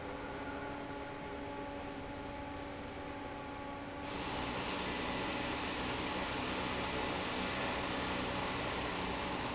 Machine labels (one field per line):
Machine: fan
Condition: normal